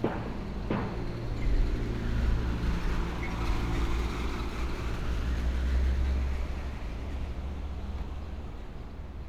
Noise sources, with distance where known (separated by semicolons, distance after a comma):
engine of unclear size